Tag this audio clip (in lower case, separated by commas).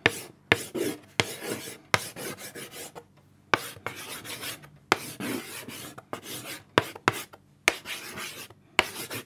writing